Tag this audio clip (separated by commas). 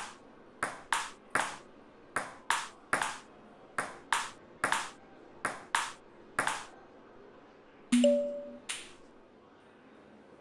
playing table tennis